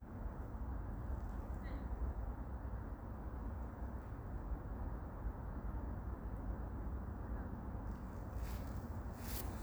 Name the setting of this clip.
park